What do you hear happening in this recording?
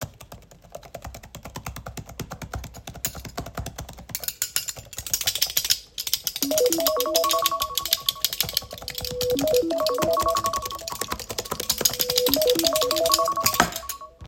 While my phone was ringing loudly on the desk, I continued to type on my keyboard while jingling my keys in my other hand.